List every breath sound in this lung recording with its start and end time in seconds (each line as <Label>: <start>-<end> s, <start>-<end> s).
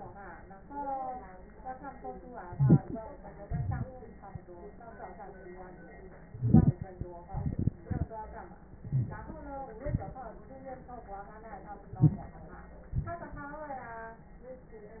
Inhalation: 2.49-3.00 s, 6.28-6.89 s, 8.77-9.45 s, 11.99-12.45 s
Exhalation: 3.47-3.87 s, 7.30-8.06 s, 9.83-10.29 s, 12.98-13.53 s